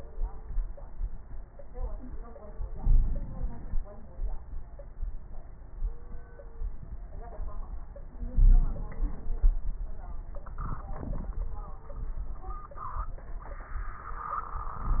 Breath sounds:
2.70-3.83 s: inhalation
2.80-3.26 s: wheeze
3.83-4.72 s: exhalation
8.31-8.77 s: wheeze
8.31-9.66 s: inhalation

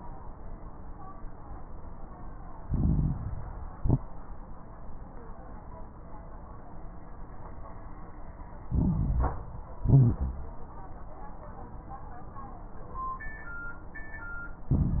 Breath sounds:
2.64-3.70 s: inhalation
2.64-3.70 s: crackles
3.76-4.01 s: exhalation
3.76-4.01 s: crackles
8.68-9.75 s: inhalation
8.68-9.75 s: crackles
9.82-10.61 s: exhalation
9.82-10.61 s: crackles
14.74-15.00 s: inhalation
14.74-15.00 s: crackles

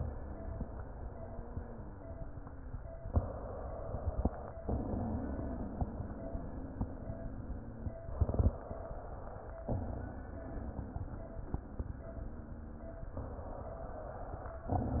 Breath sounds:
0.17-2.77 s: wheeze
3.06-4.55 s: inhalation
4.61-7.95 s: exhalation
4.61-7.95 s: wheeze
8.18-9.68 s: inhalation
9.66-13.09 s: exhalation
9.66-13.09 s: wheeze
13.17-14.67 s: inhalation

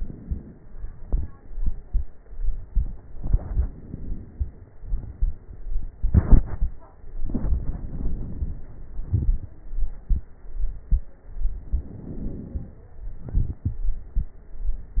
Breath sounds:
3.15-4.74 s: inhalation
4.72-5.93 s: exhalation
7.19-8.70 s: inhalation
8.90-9.58 s: exhalation
8.90-9.58 s: crackles
11.47-12.98 s: inhalation
13.00-14.17 s: exhalation
13.00-14.17 s: crackles

